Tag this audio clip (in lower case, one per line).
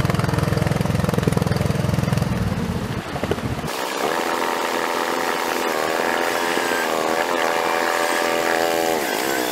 vehicle